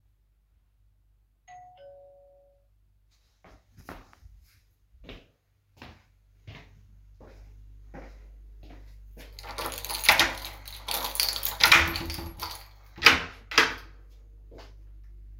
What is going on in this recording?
I was laying in bed when the doorbell rang, i then got up walked to the door and opened it with my keys